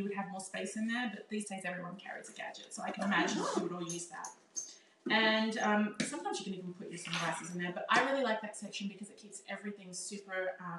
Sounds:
Speech, inside a small room

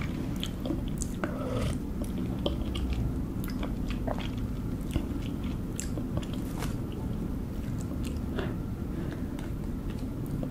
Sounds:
people slurping

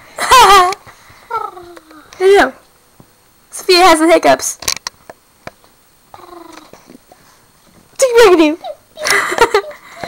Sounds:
Speech

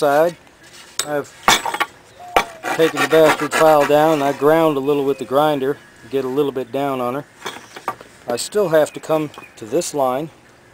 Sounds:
Speech

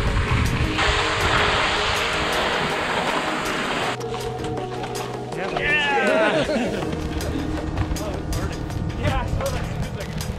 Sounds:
skiing

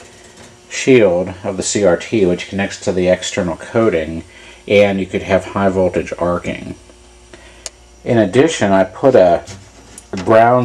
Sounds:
Speech

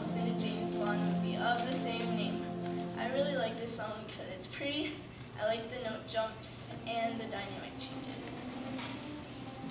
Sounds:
Speech, Music, Piano

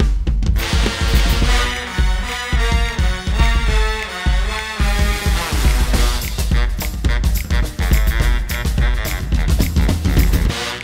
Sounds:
Music

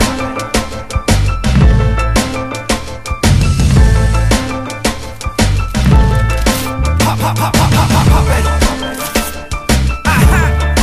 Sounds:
Music

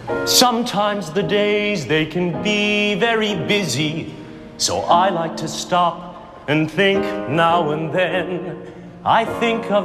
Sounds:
Music

